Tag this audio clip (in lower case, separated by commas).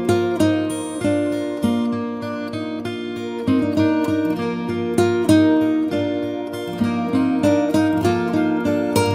music